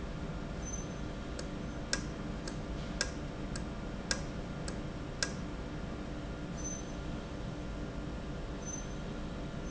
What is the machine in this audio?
valve